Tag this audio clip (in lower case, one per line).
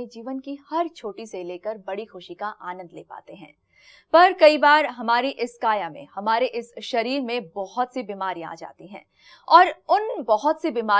speech